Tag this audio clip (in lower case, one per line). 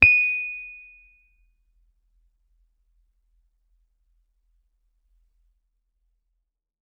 piano
keyboard (musical)
music
musical instrument